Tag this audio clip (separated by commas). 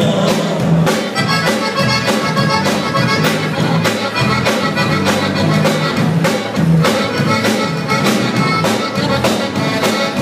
Blues, Music